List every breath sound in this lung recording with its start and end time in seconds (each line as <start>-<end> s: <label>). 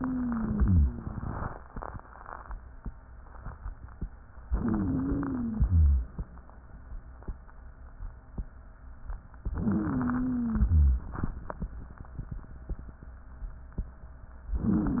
0.00-0.92 s: wheeze
4.46-5.54 s: inhalation
4.46-5.54 s: wheeze
5.54-6.10 s: exhalation
5.54-6.10 s: rhonchi
9.46-10.70 s: inhalation
9.46-10.70 s: wheeze
10.70-11.22 s: exhalation
10.70-11.22 s: rhonchi
14.52-15.00 s: inhalation
14.52-15.00 s: wheeze